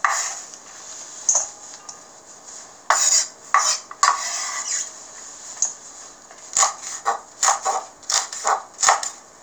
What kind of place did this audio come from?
kitchen